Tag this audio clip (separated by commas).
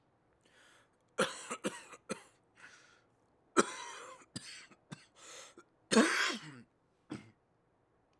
Respiratory sounds, Cough